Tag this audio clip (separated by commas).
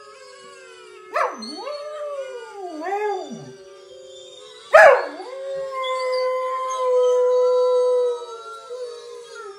dog howling